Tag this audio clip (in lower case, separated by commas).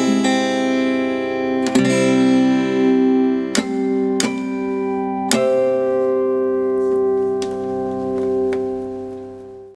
music, acoustic guitar, musical instrument, plucked string instrument, guitar